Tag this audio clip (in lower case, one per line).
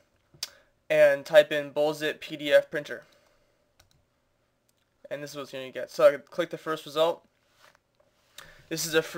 speech